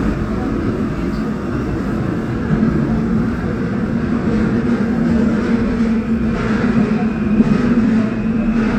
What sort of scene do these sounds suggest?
subway train